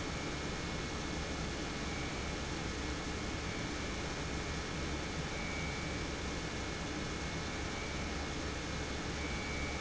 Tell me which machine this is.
pump